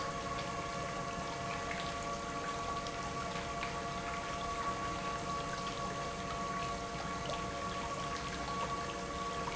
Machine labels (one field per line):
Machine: pump